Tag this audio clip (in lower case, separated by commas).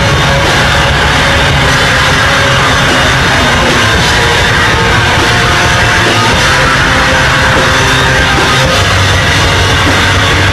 heavy metal, rock music, music